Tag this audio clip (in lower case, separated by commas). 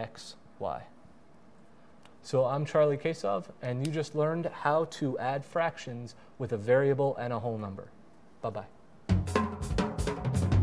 drum, hi-hat